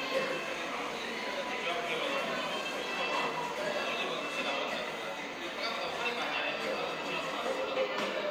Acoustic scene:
cafe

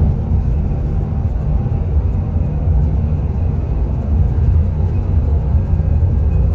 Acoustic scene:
car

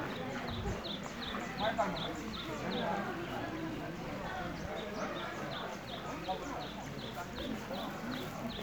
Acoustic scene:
park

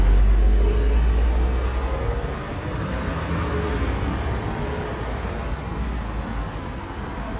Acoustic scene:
street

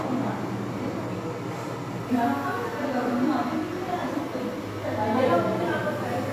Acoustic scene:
crowded indoor space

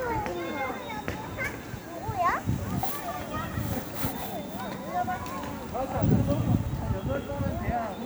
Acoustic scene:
residential area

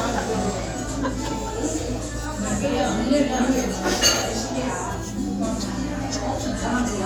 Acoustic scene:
restaurant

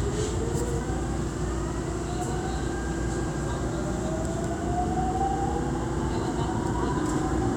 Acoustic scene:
subway train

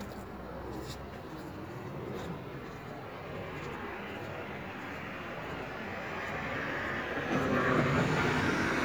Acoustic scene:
street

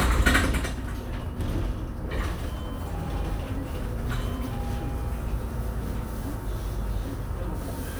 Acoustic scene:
bus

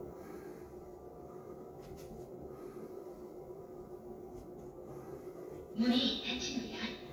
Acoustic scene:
elevator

